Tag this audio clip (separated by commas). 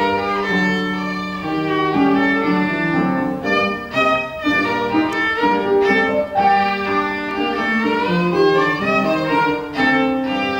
Musical instrument, fiddle, Music